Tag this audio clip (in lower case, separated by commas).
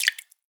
liquid, drip